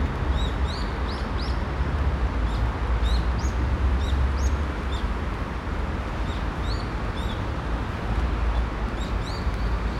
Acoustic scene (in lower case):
park